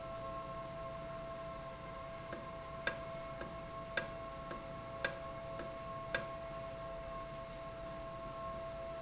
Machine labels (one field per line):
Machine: valve